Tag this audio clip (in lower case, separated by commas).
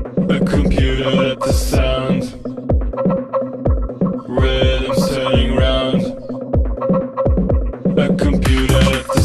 music